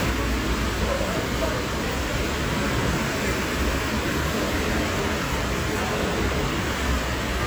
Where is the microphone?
on a street